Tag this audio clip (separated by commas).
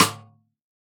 Percussion, Snare drum, Music, Drum, Musical instrument